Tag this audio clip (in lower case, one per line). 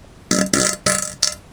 fart